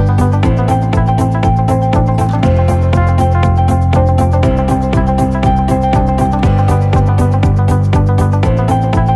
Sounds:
Music

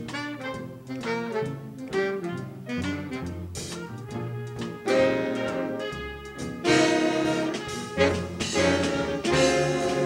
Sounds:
Trombone, Musical instrument, Music

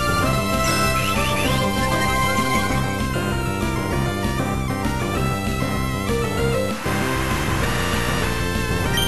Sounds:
Music

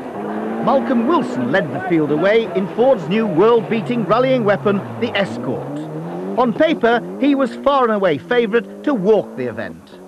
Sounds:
Speech, vroom

